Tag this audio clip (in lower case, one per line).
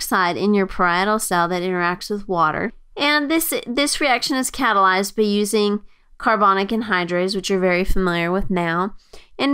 speech